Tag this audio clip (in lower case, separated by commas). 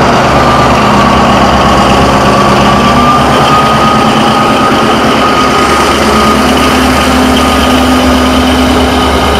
rail transport, railroad car, train, vehicle